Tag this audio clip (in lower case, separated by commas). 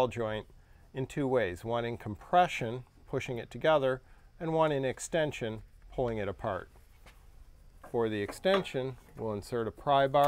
speech